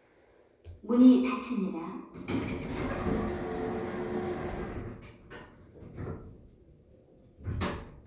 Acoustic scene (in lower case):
elevator